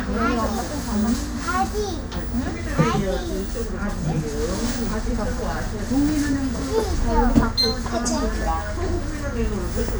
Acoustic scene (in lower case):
bus